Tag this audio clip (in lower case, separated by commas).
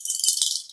animal, wild animals, bird vocalization, bird